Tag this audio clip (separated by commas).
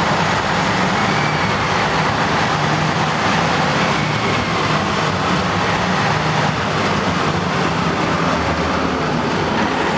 Engine, Bus, Vehicle